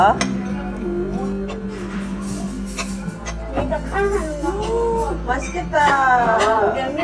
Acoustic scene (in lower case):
restaurant